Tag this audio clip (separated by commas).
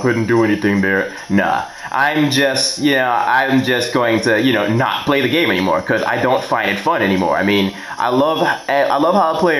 Speech